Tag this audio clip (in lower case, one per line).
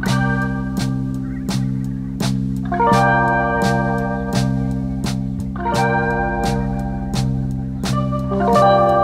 music